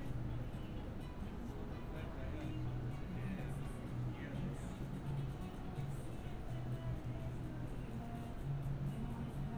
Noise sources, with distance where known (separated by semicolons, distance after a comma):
music from an unclear source, far; person or small group talking